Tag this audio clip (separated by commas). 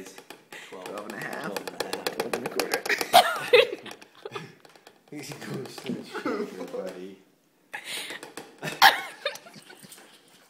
Speech, Laughter